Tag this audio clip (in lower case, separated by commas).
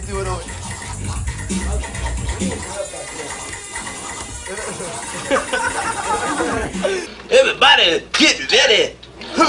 music, speech